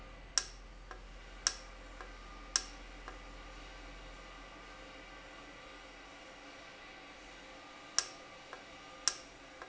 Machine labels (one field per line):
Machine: valve